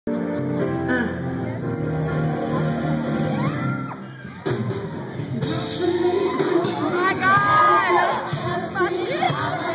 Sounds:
music, singing, inside a large room or hall

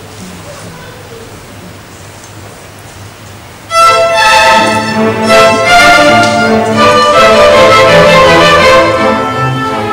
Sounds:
speech, music, fiddle, musical instrument

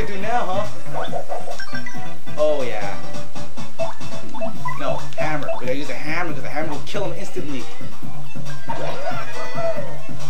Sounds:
music, speech

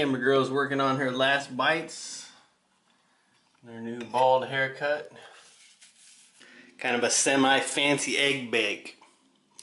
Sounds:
speech, inside a small room

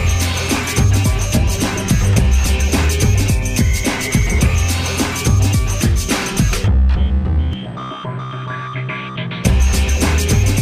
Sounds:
music

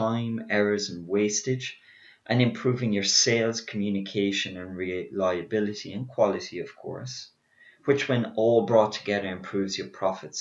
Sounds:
speech

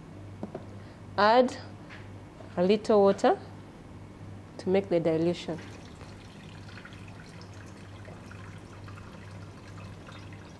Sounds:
speech, drip, inside a small room

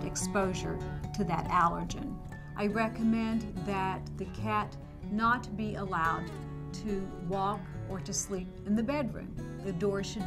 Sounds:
music, speech

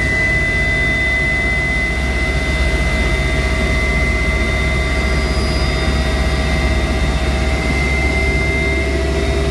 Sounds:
fixed-wing aircraft, jet engine, vehicle, aircraft

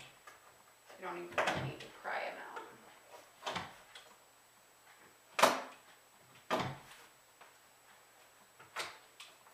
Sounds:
speech, inside a large room or hall

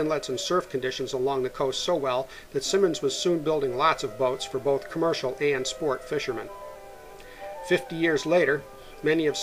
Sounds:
music, speech

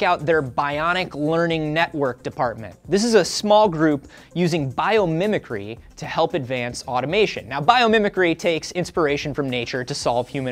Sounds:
speech, music

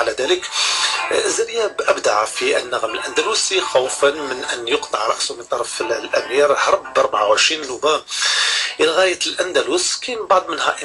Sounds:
speech, music

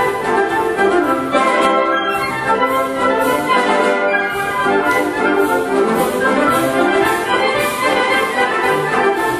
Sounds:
music, classical music, orchestra

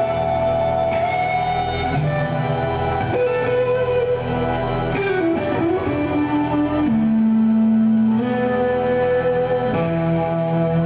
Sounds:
guitar, plucked string instrument, electric guitar, musical instrument, strum, music

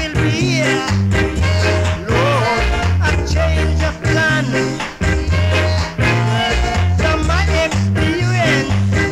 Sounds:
music, ska

